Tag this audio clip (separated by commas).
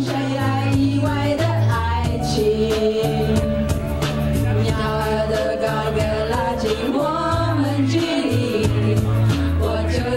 Music, Choir